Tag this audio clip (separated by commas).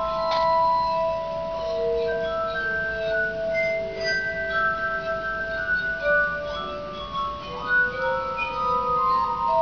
Music, Musical instrument